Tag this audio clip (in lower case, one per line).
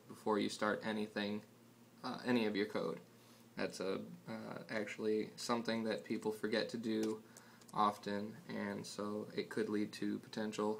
speech